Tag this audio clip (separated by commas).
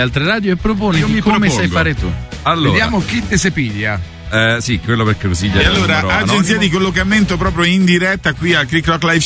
Speech, Music